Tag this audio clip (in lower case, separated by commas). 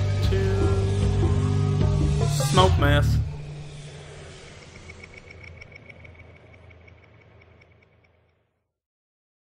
speech, music